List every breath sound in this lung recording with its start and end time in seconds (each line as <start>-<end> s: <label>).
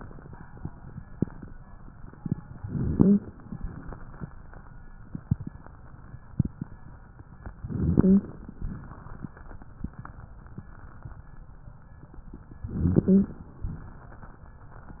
2.62-3.36 s: inhalation
2.73-3.25 s: wheeze
7.61-8.48 s: inhalation
7.78-8.27 s: wheeze
12.71-13.59 s: inhalation
12.88-13.38 s: wheeze